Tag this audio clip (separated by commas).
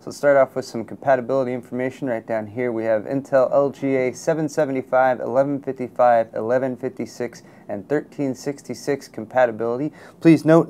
Speech